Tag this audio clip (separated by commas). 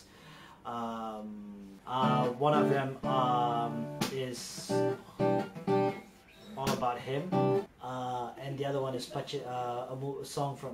Speech, Music, man speaking